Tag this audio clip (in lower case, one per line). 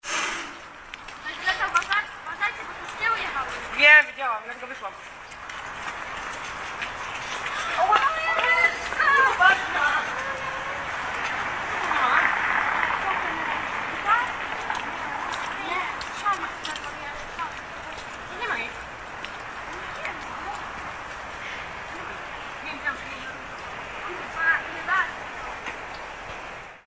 conversation
human voice
speech